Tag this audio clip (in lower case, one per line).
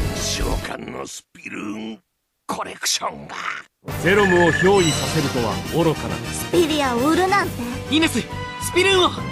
speech
music